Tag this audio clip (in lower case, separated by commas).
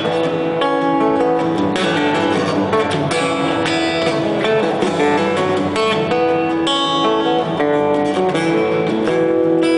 music, acoustic guitar, musical instrument, guitar, plucked string instrument, strum, bass guitar